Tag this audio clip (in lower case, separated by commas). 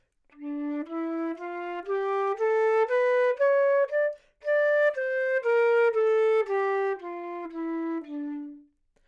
musical instrument, music, woodwind instrument